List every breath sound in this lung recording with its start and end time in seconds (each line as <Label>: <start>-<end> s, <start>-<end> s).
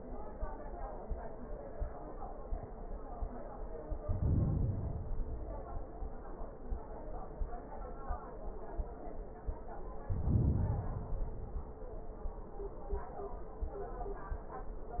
Inhalation: 4.00-5.13 s, 10.08-11.07 s
Exhalation: 5.13-6.33 s, 11.09-12.07 s